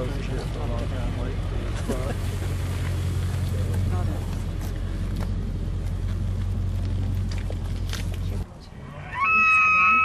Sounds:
elk bugling

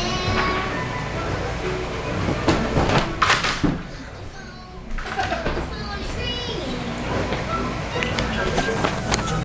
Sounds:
speech
music

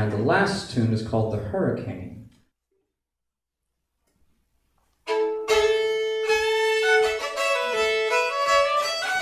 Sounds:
violin
musical instrument
speech
music

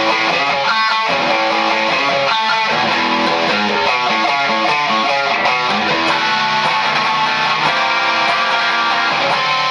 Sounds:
guitar
plucked string instrument
music
strum
musical instrument
bass guitar

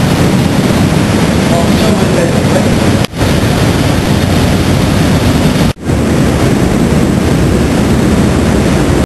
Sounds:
speech

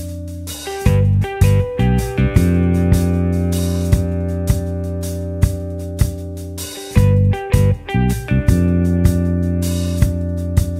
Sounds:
music

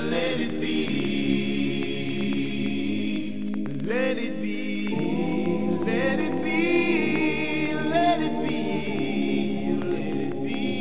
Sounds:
music

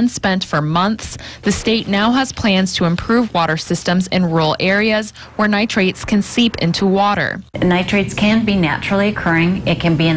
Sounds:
water
speech

